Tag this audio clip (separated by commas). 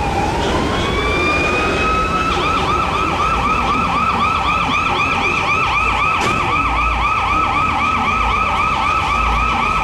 Police car (siren), Fire engine, Vehicle